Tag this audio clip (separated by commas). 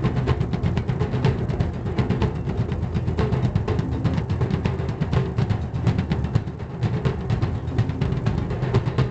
Musical instrument, Drum, Bass drum, playing bass drum